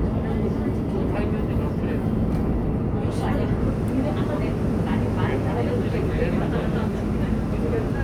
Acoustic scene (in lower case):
subway train